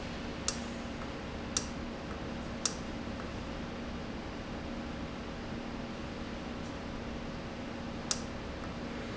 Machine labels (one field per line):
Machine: valve